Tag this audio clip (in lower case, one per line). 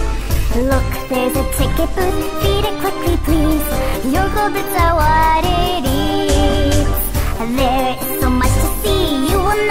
music